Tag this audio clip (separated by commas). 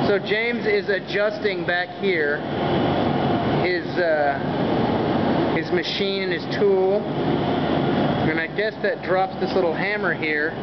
Speech